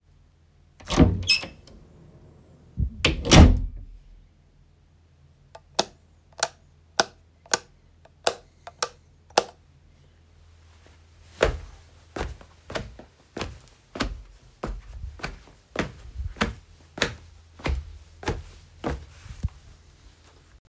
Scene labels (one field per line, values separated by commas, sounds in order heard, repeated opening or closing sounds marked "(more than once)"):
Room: bedroom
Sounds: door (more than once), light switch, footsteps